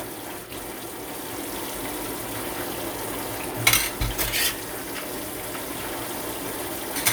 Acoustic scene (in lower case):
kitchen